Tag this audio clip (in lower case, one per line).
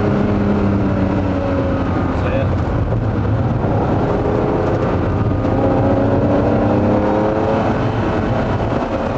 vehicle
car